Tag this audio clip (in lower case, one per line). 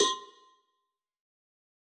bell
cowbell